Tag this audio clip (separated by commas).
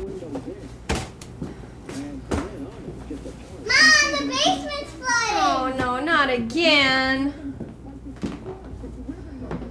Speech